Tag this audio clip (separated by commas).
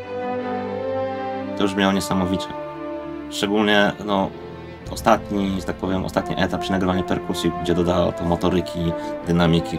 Brass instrument, Trombone